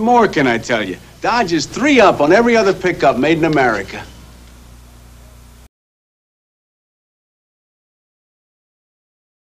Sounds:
Speech

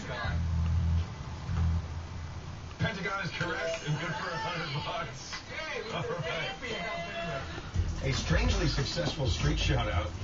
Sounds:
Speech

